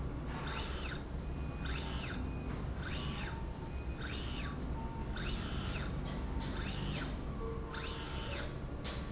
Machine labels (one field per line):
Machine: slide rail